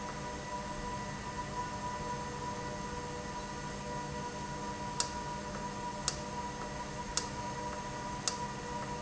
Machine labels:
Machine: valve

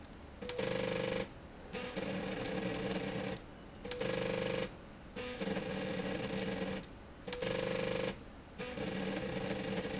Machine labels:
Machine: slide rail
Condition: abnormal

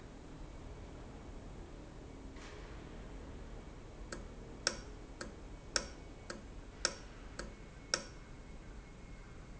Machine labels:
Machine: valve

